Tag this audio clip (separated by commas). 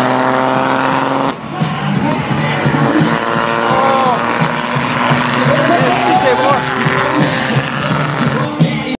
Truck, Music, Speech, Vehicle